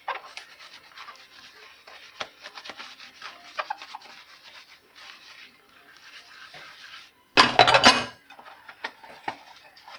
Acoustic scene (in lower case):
kitchen